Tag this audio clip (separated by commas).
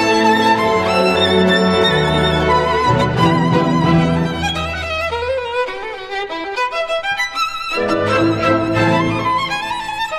Violin, Musical instrument, Music